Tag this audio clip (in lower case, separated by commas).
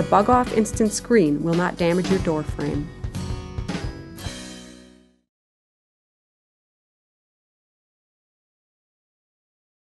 music, speech